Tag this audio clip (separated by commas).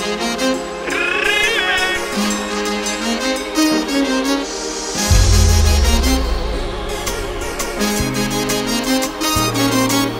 Music